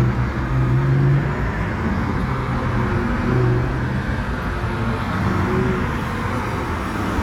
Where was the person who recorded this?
on a street